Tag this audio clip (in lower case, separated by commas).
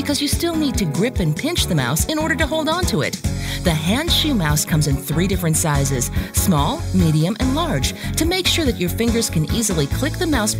music, speech